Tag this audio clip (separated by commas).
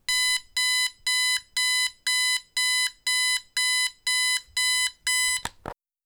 Alarm